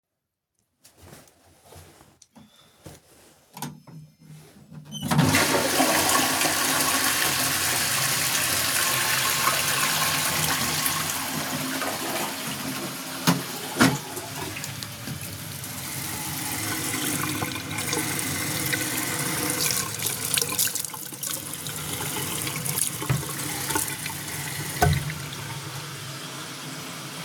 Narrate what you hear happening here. I flush the toilet while the water was ruuning